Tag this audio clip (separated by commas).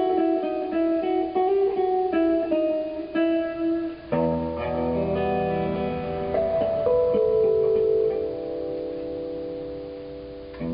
Musical instrument, Strum, Plucked string instrument, Guitar, Music